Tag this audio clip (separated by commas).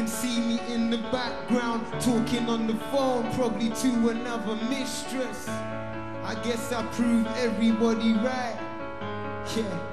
Music